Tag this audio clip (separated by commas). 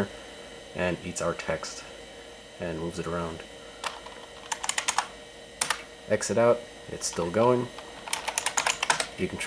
Typing, Computer keyboard, Speech